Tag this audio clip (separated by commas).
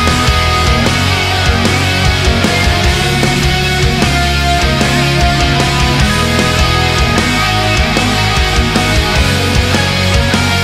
Guitar, Music, Musical instrument